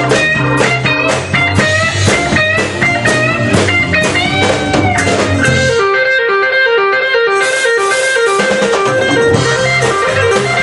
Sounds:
music, guitar, acoustic guitar, musical instrument, plucked string instrument

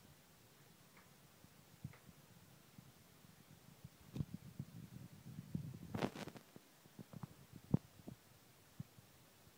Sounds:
television

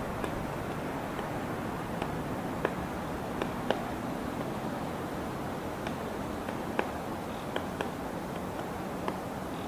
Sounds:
woodpecker pecking tree

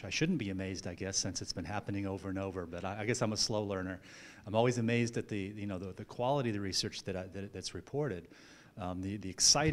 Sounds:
speech

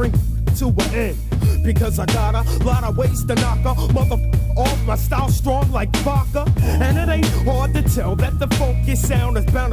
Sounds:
music

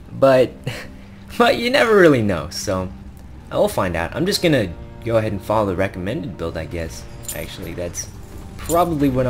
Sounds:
speech, music

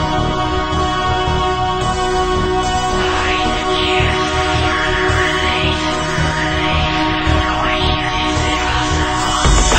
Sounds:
music

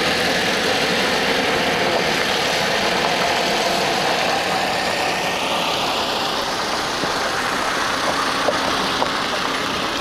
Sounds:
vehicle, motor vehicle (road)

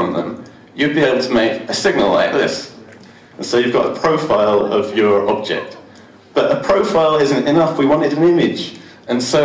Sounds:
speech, man speaking

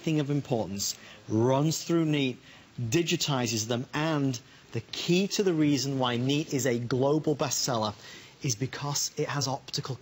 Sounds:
speech, narration

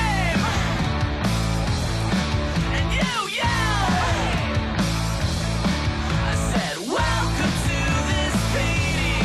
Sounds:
music, yell

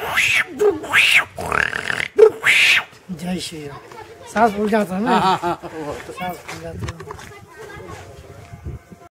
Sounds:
crowd

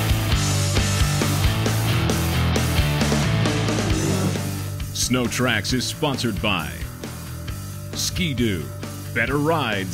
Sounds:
speech, music

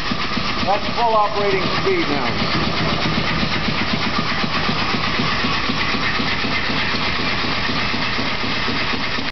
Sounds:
engine, heavy engine (low frequency), idling, speech

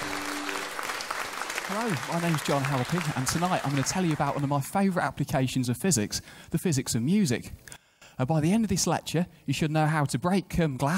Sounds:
music, speech

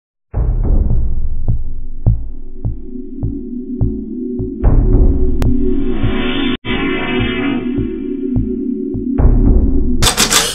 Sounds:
inside a small room, music

